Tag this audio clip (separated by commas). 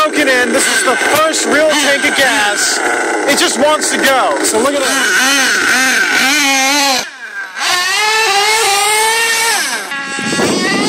Speech